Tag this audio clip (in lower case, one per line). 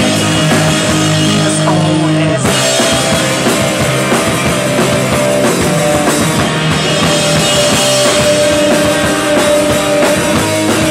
rock music
punk rock
music